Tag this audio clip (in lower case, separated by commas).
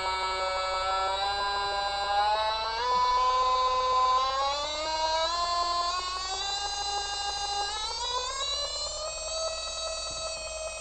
sound effect